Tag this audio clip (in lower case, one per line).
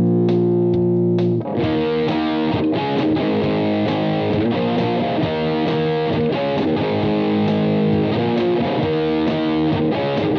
music
plucked string instrument
guitar
electric guitar
musical instrument
effects unit